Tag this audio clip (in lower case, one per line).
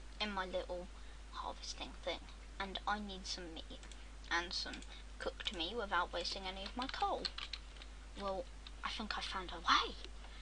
speech